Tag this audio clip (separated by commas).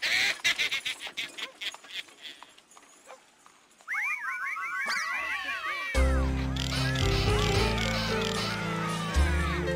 inside a small room, Music